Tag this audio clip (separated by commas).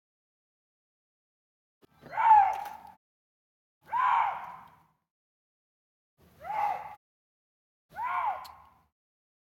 fox barking